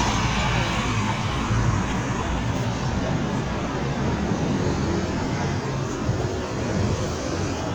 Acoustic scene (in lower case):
street